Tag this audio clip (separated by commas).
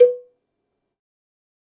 Bell, Cowbell